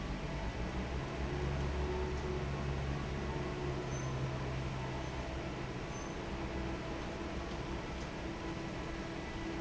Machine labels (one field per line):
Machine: fan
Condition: normal